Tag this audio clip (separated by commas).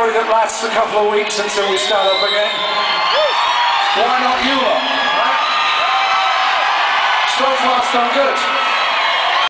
monologue, Speech, man speaking